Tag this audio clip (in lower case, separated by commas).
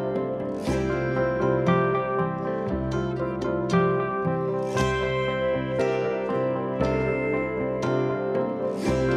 classical music, music